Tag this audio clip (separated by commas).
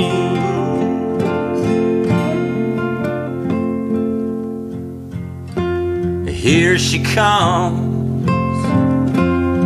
Music